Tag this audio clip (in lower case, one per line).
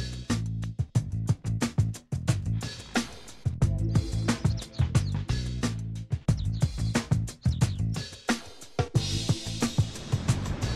music